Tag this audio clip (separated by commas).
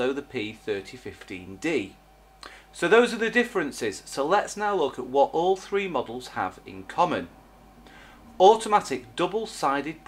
Speech